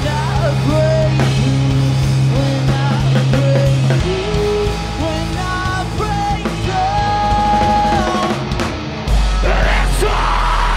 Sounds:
music

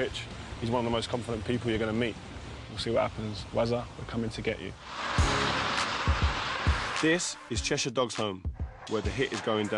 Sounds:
speech, rustling leaves, music

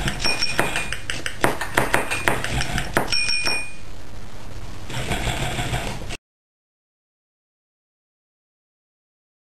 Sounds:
drum machine, musical instrument, music

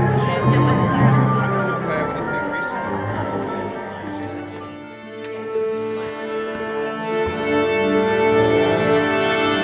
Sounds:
speech, music

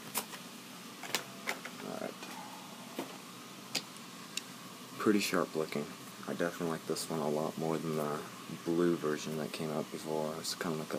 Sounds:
speech, inside a small room

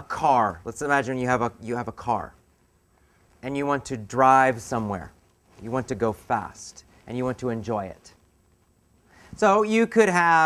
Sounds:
speech

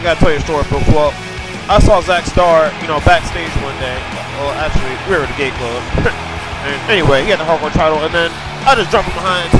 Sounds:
music, speech

